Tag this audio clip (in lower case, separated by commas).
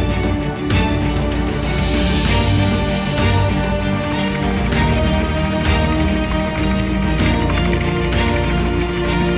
helicopter, vehicle, aircraft, music